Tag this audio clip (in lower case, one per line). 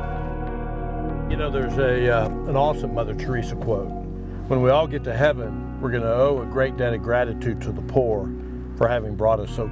speech
music